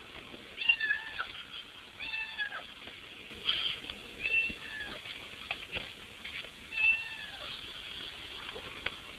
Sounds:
Animal, cat meowing, Meow, Domestic animals, Cat

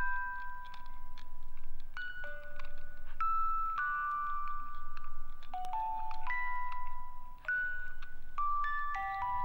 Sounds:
Ding-dong, Music, Ambient music

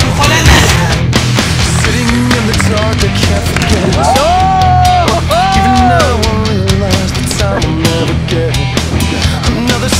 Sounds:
Music

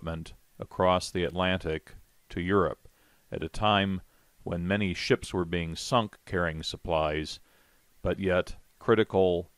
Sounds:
Speech

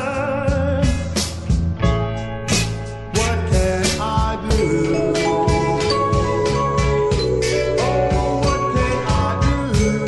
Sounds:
Music

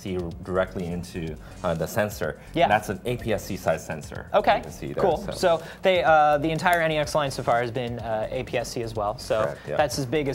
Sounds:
Music, Speech

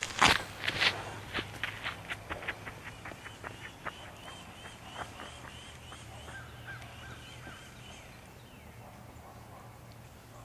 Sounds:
footsteps

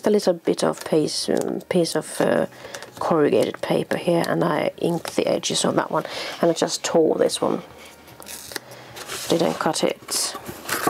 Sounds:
Speech

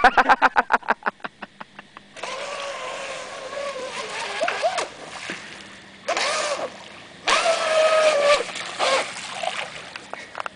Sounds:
Motorboat

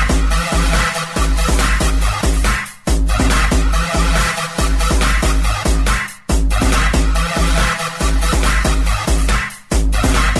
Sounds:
Techno, Music, Electronic music

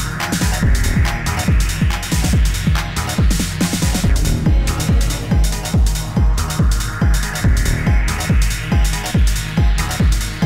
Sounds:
Trance music, Music

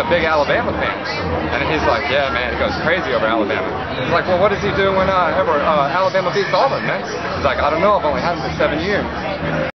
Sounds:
Speech

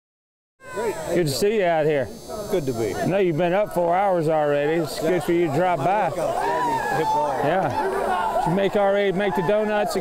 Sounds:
Speech, Shout

